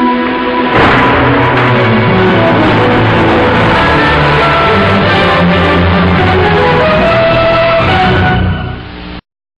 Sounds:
television
music

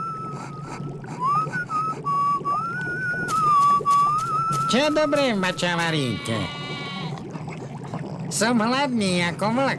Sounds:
bleat
speech
sheep

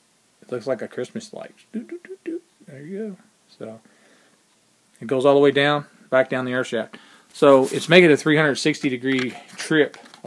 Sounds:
speech

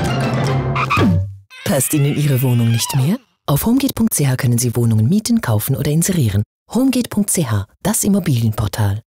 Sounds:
music
speech

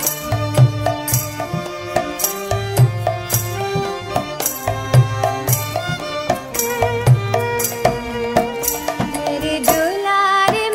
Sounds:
traditional music
tabla
music

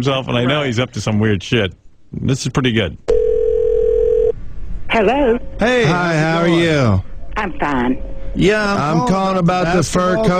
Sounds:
speech
inside a small room

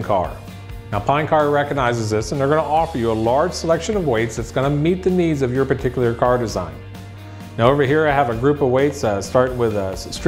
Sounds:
speech
music

